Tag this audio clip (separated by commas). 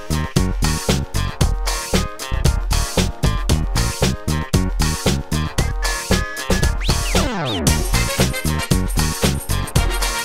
Music